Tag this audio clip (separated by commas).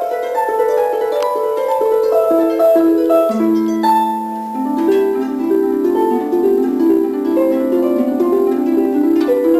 playing harp